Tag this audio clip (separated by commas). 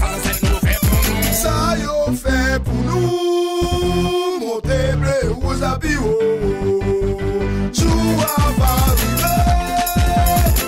Hip hop music, Music